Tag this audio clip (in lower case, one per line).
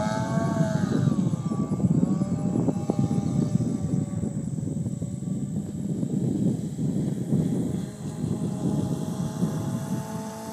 vehicle
water vehicle
speedboat